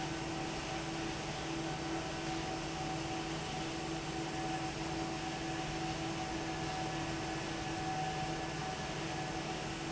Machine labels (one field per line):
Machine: fan